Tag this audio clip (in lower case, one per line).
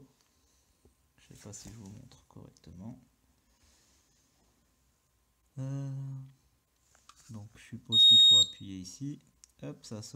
smoke detector beeping